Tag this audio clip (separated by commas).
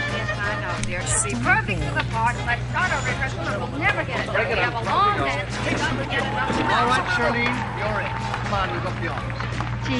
Music, Swing music, Speech